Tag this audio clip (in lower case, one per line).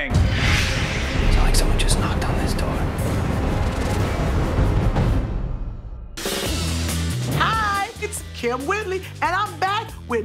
music
speech